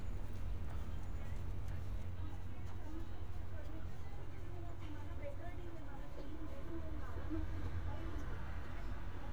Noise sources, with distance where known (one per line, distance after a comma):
person or small group talking